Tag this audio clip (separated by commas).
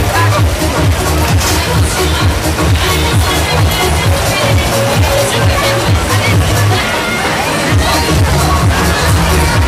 Music, Speech